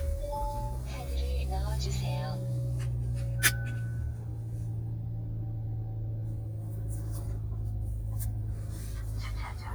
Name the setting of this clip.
car